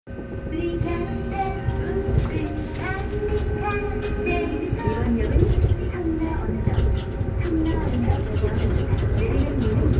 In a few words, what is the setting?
subway train